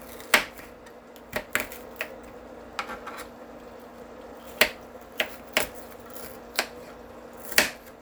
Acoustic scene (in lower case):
kitchen